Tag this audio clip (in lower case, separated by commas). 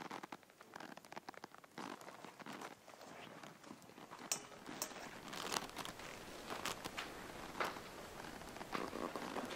inside a large room or hall